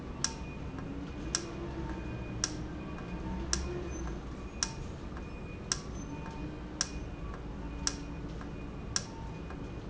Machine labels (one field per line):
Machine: valve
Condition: normal